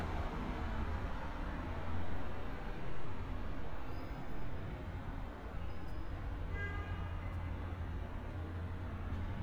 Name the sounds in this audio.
car horn